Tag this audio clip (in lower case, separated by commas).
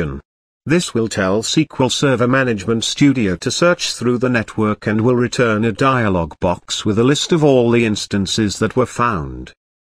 speech